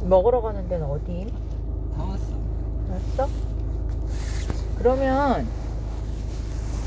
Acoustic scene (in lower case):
car